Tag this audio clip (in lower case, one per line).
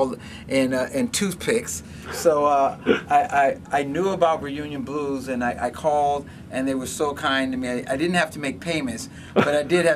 speech